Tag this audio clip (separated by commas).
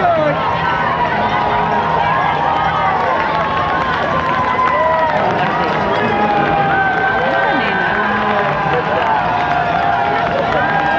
people cheering